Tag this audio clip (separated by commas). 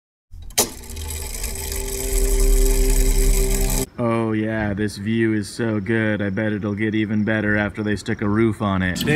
Speech, outside, urban or man-made, Music